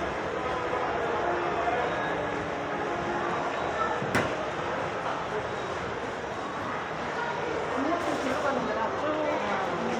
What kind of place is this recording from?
subway station